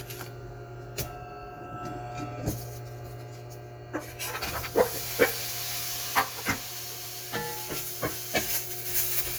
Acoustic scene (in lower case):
kitchen